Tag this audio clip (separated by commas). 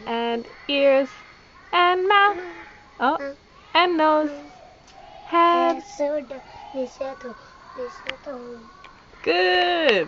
Speech, Female singing, Child singing